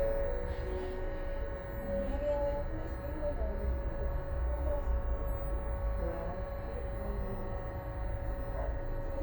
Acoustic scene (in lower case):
bus